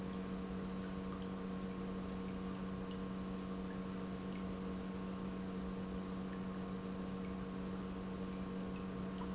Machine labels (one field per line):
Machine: pump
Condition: normal